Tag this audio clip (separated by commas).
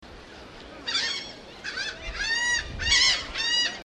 Wild animals, Bird, Animal, Gull